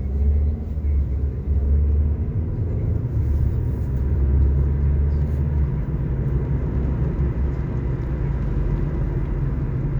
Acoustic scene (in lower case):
car